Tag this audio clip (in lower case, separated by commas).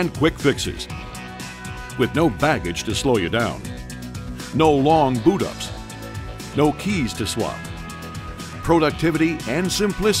speech, music